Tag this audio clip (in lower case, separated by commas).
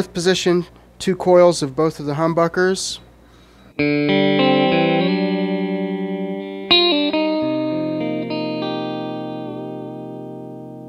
music, musical instrument, electric guitar, guitar, speech, plucked string instrument